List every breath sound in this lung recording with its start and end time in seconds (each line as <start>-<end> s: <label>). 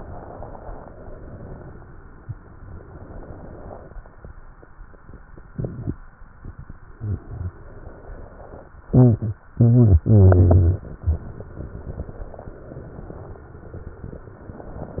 0.00-1.58 s: inhalation
1.59-2.55 s: exhalation
2.61-3.94 s: inhalation
3.98-5.53 s: exhalation
7.18-8.72 s: inhalation